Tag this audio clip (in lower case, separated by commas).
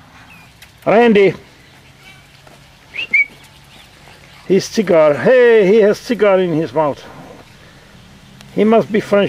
pets, outside, rural or natural, dog, speech